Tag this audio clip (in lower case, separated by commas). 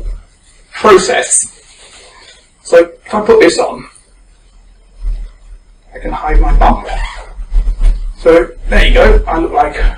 speech, male speech